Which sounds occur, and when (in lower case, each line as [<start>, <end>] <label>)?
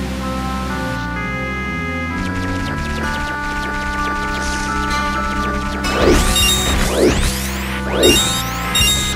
[0.00, 9.15] music
[0.00, 9.15] video game sound
[5.83, 9.15] sound effect